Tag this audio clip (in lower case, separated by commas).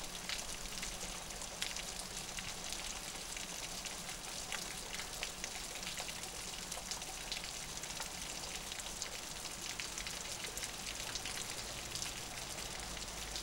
rain, water